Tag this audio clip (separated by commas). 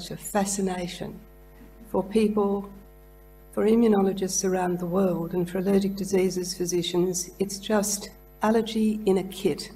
Speech